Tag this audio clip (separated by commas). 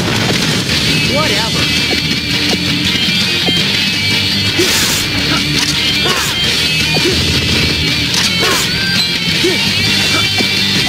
Whack